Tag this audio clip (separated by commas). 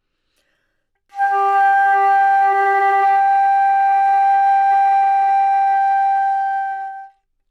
Musical instrument, Music, woodwind instrument